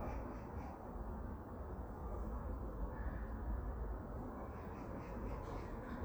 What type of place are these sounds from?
park